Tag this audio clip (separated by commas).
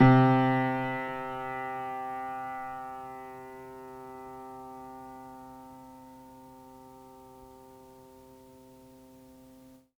Keyboard (musical), Music, Musical instrument, Piano